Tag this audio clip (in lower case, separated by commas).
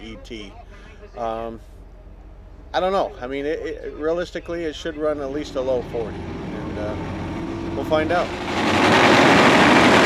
speech